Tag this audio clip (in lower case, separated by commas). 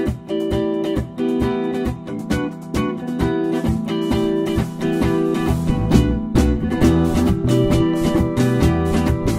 music